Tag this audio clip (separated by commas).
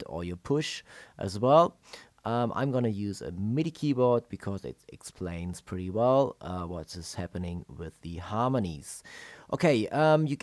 Speech